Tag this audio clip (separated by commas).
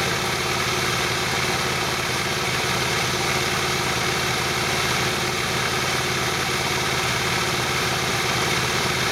Engine